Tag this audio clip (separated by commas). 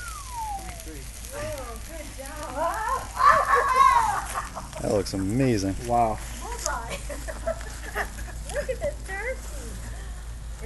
Speech, outside, rural or natural